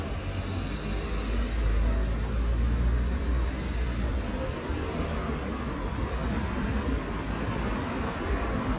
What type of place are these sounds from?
street